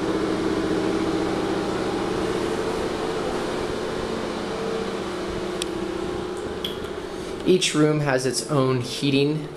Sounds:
speech, inside a small room

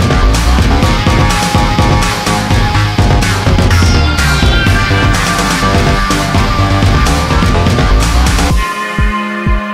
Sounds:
dubstep, electronic dance music, techno, electronica, trance music, soundtrack music, music, electronic music

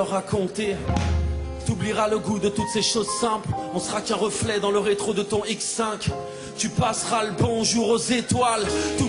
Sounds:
music

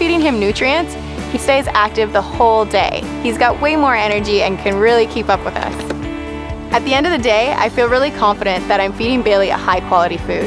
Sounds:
music, speech

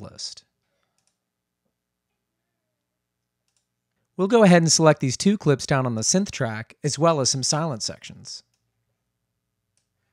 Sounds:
speech

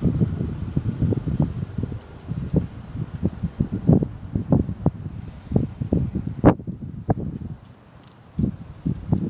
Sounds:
wind, wind noise (microphone)

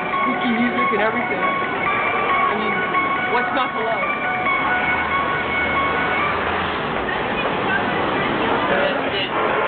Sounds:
music, speech

